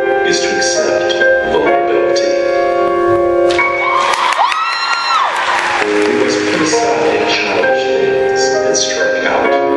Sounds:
music, speech

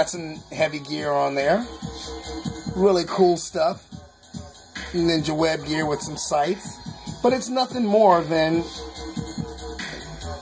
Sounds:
speech, music

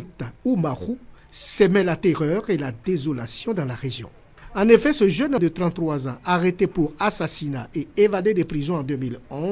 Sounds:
speech

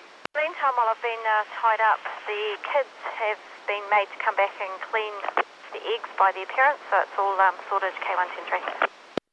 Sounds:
radio, speech

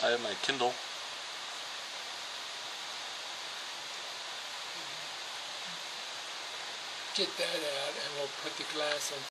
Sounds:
speech

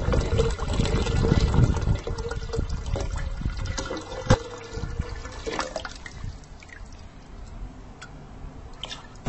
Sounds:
liquid

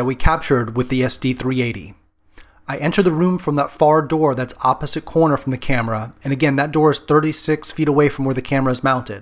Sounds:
speech

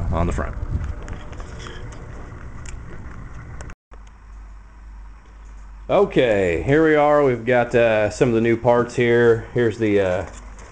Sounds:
speech

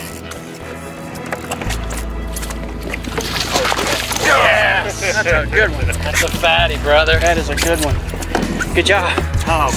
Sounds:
music, speech

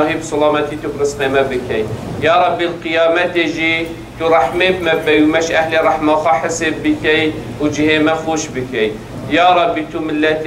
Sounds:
monologue, speech, man speaking

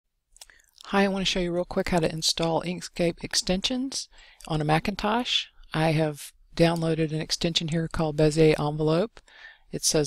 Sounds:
narration

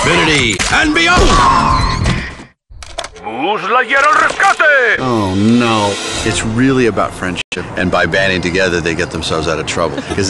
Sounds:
speech, music

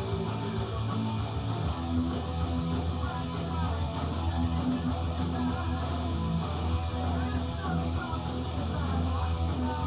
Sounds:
music, musical instrument, electric guitar, guitar, plucked string instrument

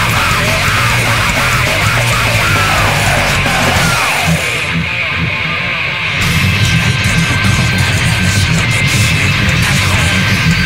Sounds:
music, cacophony

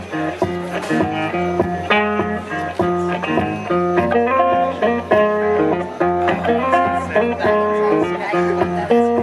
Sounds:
music, speech

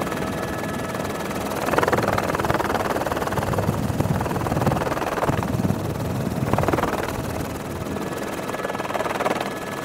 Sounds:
helicopter

